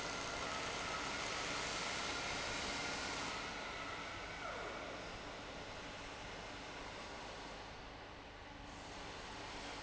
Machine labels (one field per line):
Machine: fan